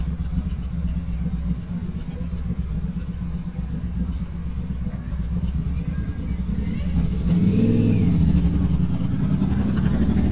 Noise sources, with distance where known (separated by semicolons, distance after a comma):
medium-sounding engine, near